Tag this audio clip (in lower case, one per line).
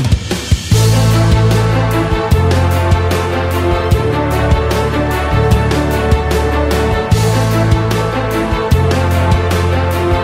music